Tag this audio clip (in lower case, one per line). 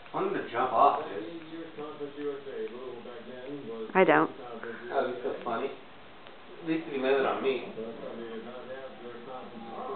speech